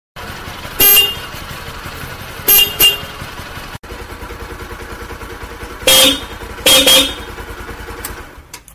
Engine running and horn honking